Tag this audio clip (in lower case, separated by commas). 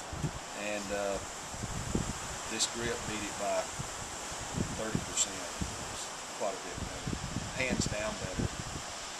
speech